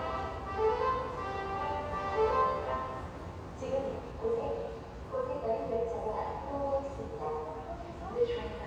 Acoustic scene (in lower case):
subway station